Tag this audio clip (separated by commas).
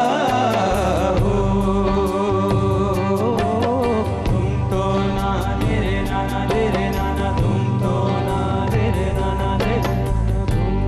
Music, Traditional music